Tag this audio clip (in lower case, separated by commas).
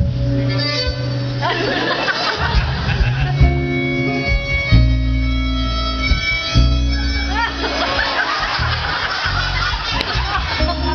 music, fiddle, musical instrument